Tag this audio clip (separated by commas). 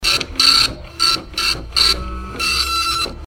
Mechanisms, Printer